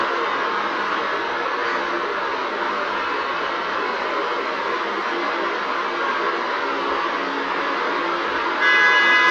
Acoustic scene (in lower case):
street